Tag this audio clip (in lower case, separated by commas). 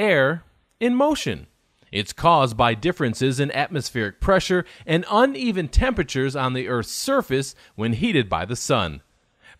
speech